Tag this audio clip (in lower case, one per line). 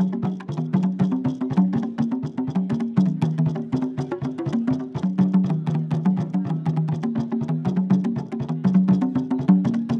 musical instrument
drum
music